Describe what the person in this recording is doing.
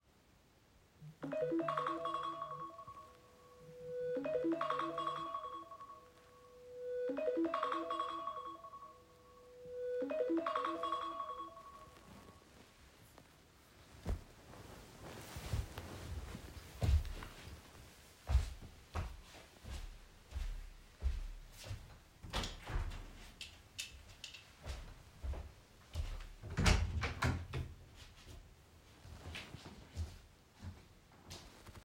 My alarm clock starts ringing. I turn it off, stand up, walk to the window and open it, then walk to the bedroom door and open it.